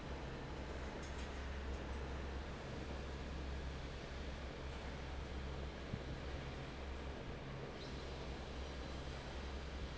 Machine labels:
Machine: fan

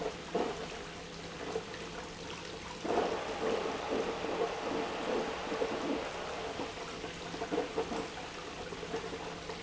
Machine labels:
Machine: pump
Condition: abnormal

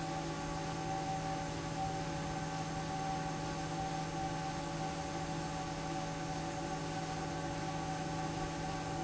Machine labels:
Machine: fan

